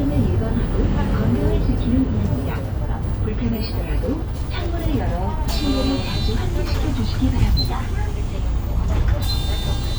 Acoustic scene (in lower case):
bus